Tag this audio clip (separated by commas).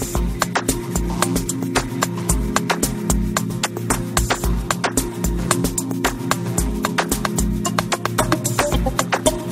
Music